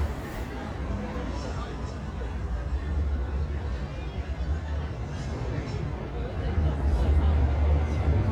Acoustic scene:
residential area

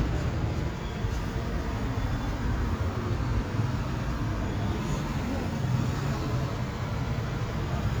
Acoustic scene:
street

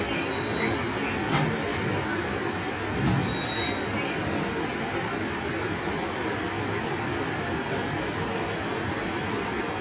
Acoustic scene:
subway station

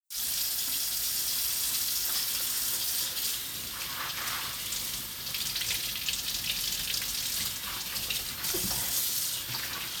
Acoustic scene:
kitchen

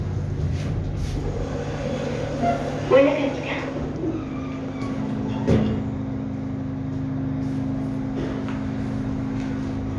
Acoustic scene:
elevator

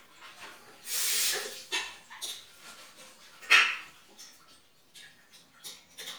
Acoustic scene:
restroom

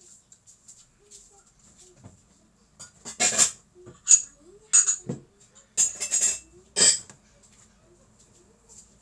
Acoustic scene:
kitchen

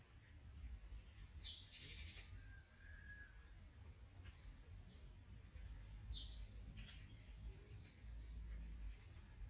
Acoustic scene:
park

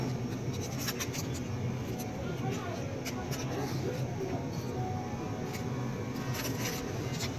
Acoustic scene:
crowded indoor space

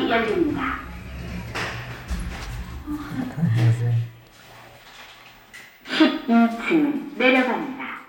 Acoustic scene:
elevator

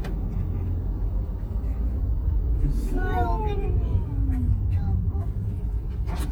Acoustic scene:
car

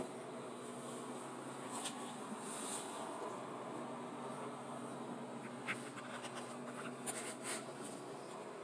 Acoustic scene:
bus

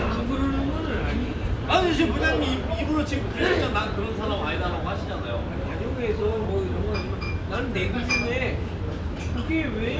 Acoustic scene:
restaurant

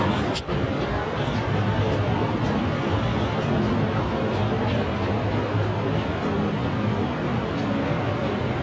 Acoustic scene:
subway station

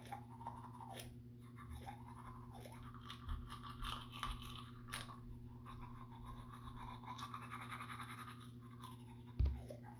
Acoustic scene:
restroom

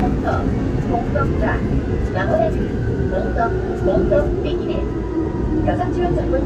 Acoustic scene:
subway train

